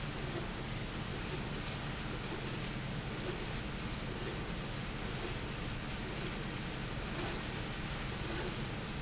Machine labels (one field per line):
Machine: slide rail